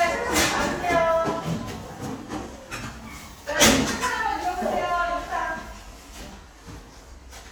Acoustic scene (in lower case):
crowded indoor space